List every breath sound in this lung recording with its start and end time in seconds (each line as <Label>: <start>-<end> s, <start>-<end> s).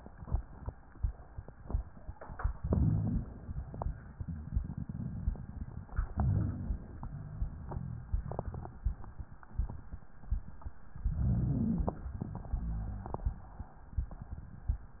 Inhalation: 2.55-3.50 s, 6.16-7.11 s, 11.02-12.17 s
Exhalation: 12.17-13.91 s
Wheeze: 11.02-11.99 s
Rhonchi: 2.60-3.27 s, 6.14-6.79 s, 12.49-13.23 s